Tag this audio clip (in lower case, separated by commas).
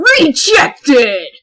speech, female speech, human voice